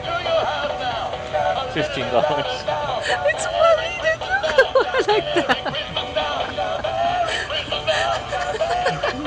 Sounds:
Music, Speech

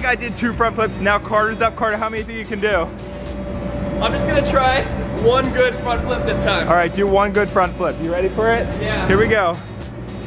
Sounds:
bouncing on trampoline

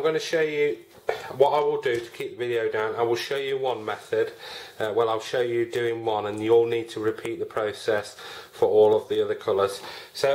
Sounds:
Speech

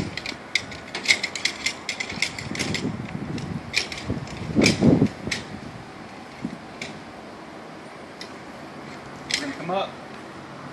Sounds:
Mechanisms

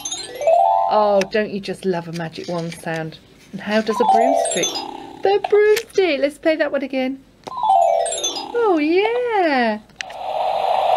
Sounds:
Speech

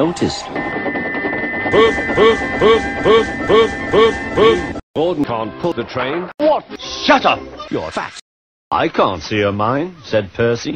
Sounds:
Music, Speech

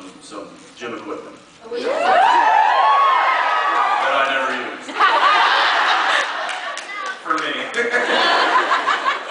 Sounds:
inside a large room or hall, Speech

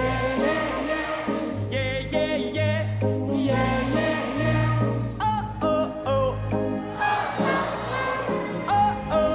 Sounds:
Music, Orchestra

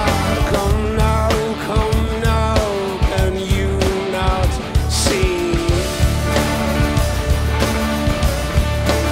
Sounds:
Music

